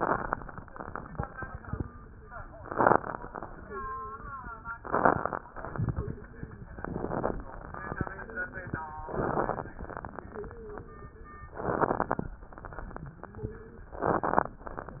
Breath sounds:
3.62-4.29 s: wheeze
5.92-6.70 s: wheeze
6.72-7.38 s: inhalation
9.11-9.77 s: inhalation
10.34-11.44 s: wheeze
11.63-12.30 s: inhalation
13.40-13.91 s: wheeze
13.98-14.65 s: inhalation

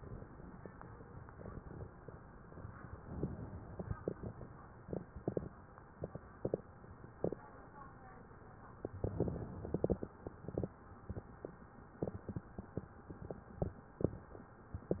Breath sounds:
3.02-4.00 s: inhalation
8.98-10.07 s: inhalation
14.84-15.00 s: inhalation

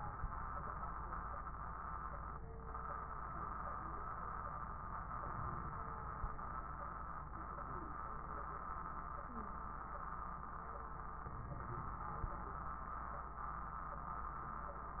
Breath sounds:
11.23-12.67 s: inhalation
11.23-12.67 s: crackles

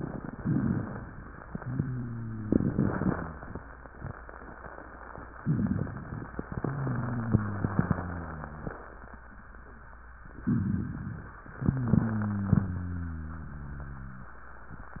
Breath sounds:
1.58-3.40 s: wheeze
5.42-6.36 s: inhalation
5.42-6.36 s: crackles
6.48-8.78 s: exhalation
6.48-8.78 s: wheeze
10.42-11.46 s: inhalation
10.42-11.46 s: crackles
11.56-14.36 s: exhalation
11.56-14.36 s: wheeze

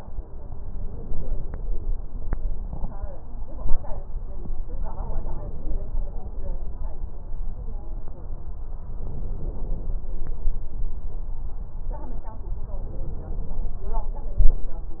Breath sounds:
0.79-1.69 s: inhalation
4.65-6.11 s: inhalation
8.94-9.91 s: inhalation
12.72-13.84 s: inhalation

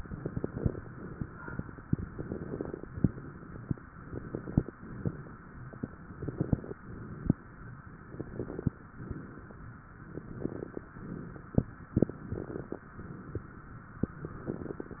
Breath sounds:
0.15-0.82 s: inhalation
0.15-0.82 s: crackles
0.86-1.46 s: exhalation
0.86-1.46 s: crackles
2.15-2.81 s: inhalation
2.15-2.81 s: crackles
2.93-3.62 s: crackles
2.94-3.62 s: exhalation
4.06-4.73 s: inhalation
4.06-4.73 s: crackles
4.77-5.39 s: crackles
4.78-5.40 s: exhalation
6.13-6.79 s: inhalation
6.13-6.79 s: crackles
6.80-7.42 s: crackles
6.81-7.43 s: exhalation
8.12-8.79 s: inhalation
8.12-8.79 s: crackles
8.99-9.61 s: exhalation
9.00-9.62 s: crackles
10.21-10.87 s: inhalation
10.21-10.87 s: crackles
10.96-11.57 s: crackles
10.99-11.60 s: exhalation
12.16-12.83 s: inhalation
12.16-12.83 s: crackles
12.92-13.54 s: exhalation
12.93-13.55 s: crackles
14.38-15.00 s: inhalation
14.38-15.00 s: crackles

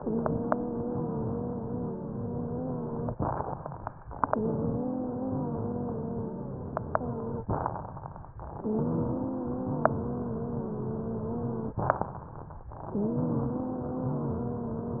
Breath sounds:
0.00-3.12 s: exhalation
0.00-3.13 s: wheeze
3.19-4.09 s: inhalation
3.19-4.09 s: crackles
4.29-7.41 s: exhalation
4.31-7.44 s: wheeze
7.47-8.38 s: inhalation
7.47-8.38 s: crackles
8.61-11.74 s: exhalation
8.61-11.75 s: wheeze
11.84-12.74 s: inhalation
11.84-12.74 s: crackles
12.90-15.00 s: exhalation
12.90-15.00 s: wheeze

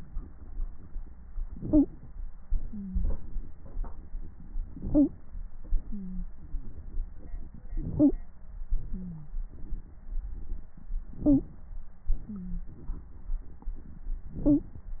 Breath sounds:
1.41-2.18 s: inhalation
1.70-1.88 s: stridor
2.50-4.59 s: exhalation
2.70-3.04 s: wheeze
4.65-5.45 s: inhalation
4.92-5.11 s: stridor
5.58-7.65 s: exhalation
5.88-6.24 s: wheeze
6.37-6.74 s: wheeze
7.70-8.26 s: inhalation
7.99-8.13 s: stridor
8.71-10.77 s: exhalation
8.90-9.28 s: wheeze
11.12-12.00 s: inhalation
11.23-11.41 s: stridor
12.09-14.10 s: exhalation
12.25-12.62 s: wheeze

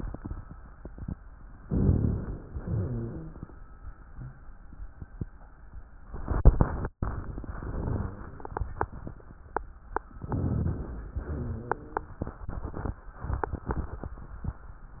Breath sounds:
1.67-2.58 s: inhalation
2.56-3.48 s: exhalation
2.56-3.48 s: rhonchi
10.23-11.14 s: inhalation
11.18-12.09 s: exhalation
11.18-12.09 s: rhonchi

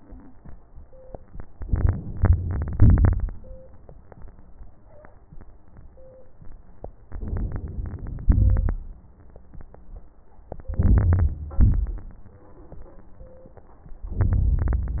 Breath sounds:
1.62-2.72 s: inhalation
1.65-2.54 s: crackles
2.71-3.32 s: exhalation
7.09-8.26 s: inhalation
8.27-8.87 s: exhalation
8.28-8.89 s: crackles
10.71-11.59 s: inhalation
10.81-11.59 s: crackles
11.59-12.19 s: exhalation
11.59-12.20 s: crackles
14.11-15.00 s: inhalation
14.23-15.00 s: crackles

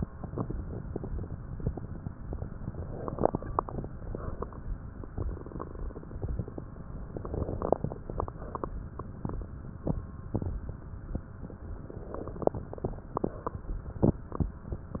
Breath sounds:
2.74-3.79 s: inhalation
3.82-4.87 s: exhalation
7.14-8.32 s: inhalation
8.32-9.50 s: exhalation
11.79-12.99 s: inhalation
12.99-14.18 s: exhalation

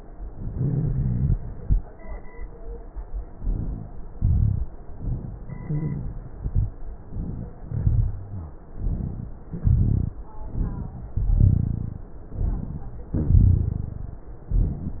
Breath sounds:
0.47-1.31 s: inhalation
0.47-1.31 s: rhonchi
3.30-4.14 s: inhalation
4.14-4.72 s: exhalation
4.14-4.72 s: rhonchi
4.92-5.37 s: inhalation
5.37-6.30 s: exhalation
5.37-6.30 s: rhonchi
7.06-7.51 s: inhalation
7.51-8.65 s: exhalation
8.79-9.30 s: inhalation
9.47-10.19 s: exhalation
9.49-10.15 s: rhonchi
10.44-11.16 s: inhalation
11.18-12.11 s: exhalation
11.18-12.11 s: rhonchi
12.31-12.98 s: inhalation
13.19-14.17 s: exhalation
13.19-14.17 s: rhonchi

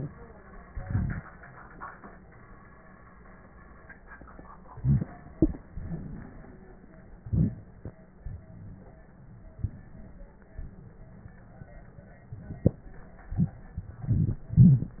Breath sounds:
0.70-1.22 s: inhalation
4.76-5.10 s: inhalation
5.69-6.93 s: exhalation
7.25-7.61 s: inhalation
8.24-9.03 s: exhalation
9.54-10.34 s: exhalation

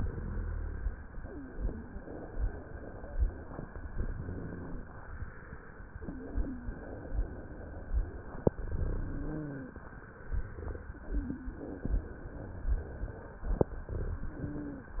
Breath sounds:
0.00-0.91 s: inhalation
0.00-0.91 s: rhonchi
3.93-4.84 s: inhalation
8.54-9.45 s: inhalation
9.03-9.77 s: wheeze
14.38-15.00 s: wheeze

